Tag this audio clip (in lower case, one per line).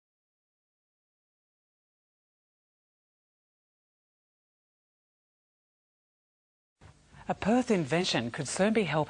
speech